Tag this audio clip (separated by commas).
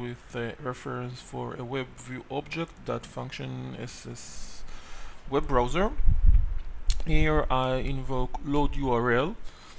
Speech